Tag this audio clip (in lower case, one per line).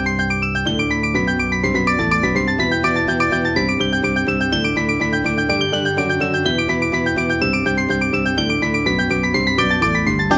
video game music
music